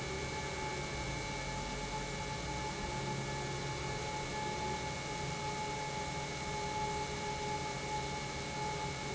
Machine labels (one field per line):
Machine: pump